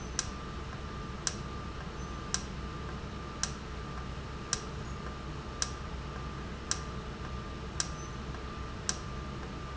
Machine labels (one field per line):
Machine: valve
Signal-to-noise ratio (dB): -6 dB